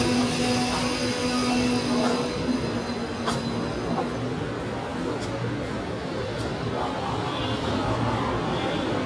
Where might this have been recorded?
in a subway station